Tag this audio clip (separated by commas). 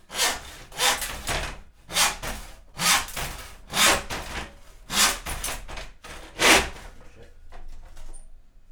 Sawing, Tools